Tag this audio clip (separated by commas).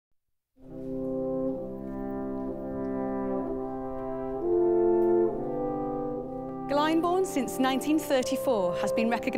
Speech, Music